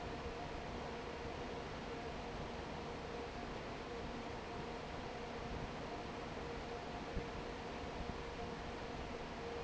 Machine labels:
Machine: fan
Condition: normal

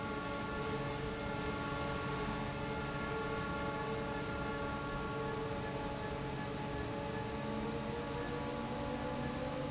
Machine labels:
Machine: fan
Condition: normal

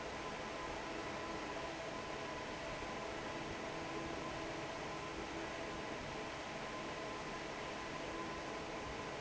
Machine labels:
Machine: fan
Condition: normal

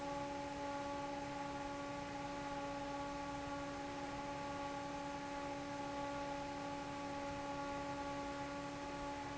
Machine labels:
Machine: fan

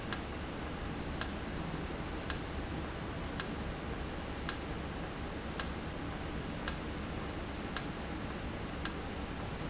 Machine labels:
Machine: valve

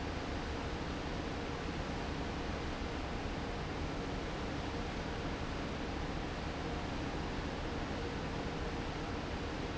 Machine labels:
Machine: fan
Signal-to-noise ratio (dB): -6 dB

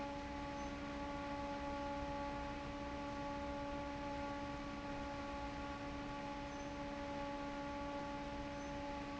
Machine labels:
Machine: fan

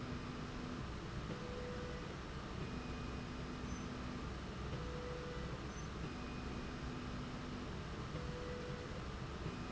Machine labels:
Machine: slide rail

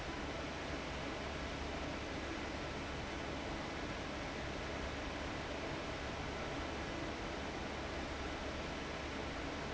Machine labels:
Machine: fan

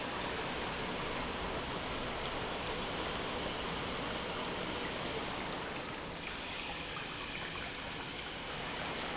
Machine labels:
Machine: pump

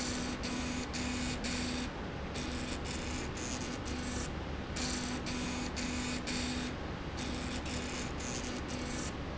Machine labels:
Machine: slide rail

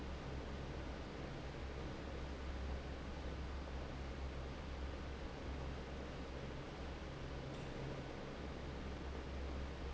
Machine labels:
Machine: fan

